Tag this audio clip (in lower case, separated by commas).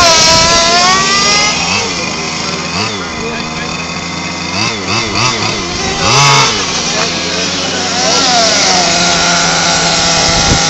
speech